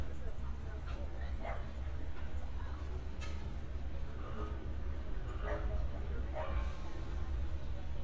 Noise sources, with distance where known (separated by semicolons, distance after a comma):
person or small group talking; dog barking or whining, far